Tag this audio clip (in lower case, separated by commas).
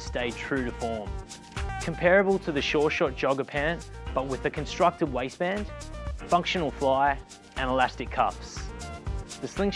music, speech